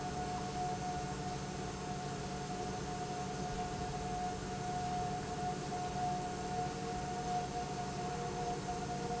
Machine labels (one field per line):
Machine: pump